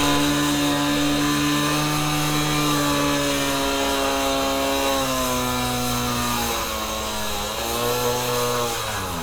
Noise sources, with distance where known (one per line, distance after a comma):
chainsaw, near